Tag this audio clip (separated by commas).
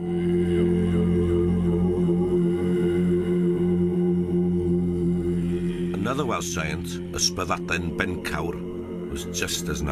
Speech